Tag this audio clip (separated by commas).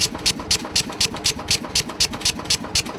Tools